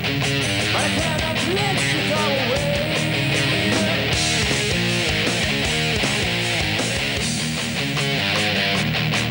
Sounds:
heavy metal
music

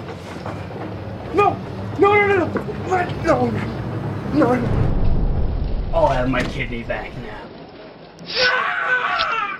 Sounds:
speech

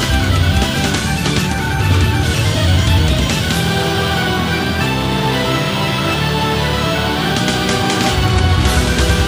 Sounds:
music

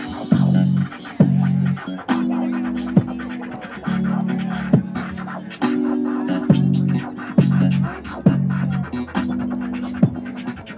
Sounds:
music
scratching (performance technique)
hip hop music
electronic music

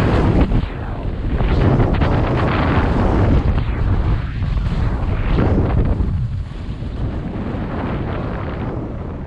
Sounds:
skiing

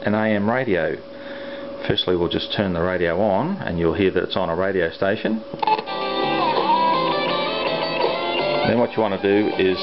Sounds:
radio

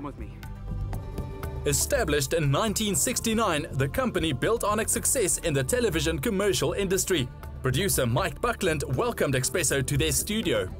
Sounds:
music
speech

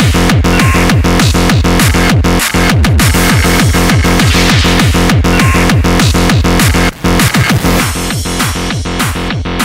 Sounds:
vibration
music

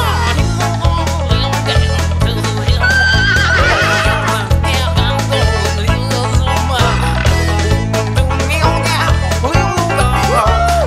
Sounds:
funny music
music

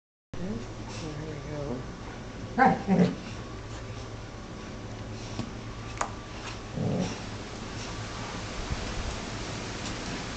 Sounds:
dog
animal
speech

